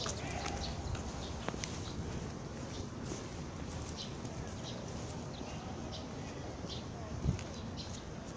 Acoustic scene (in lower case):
park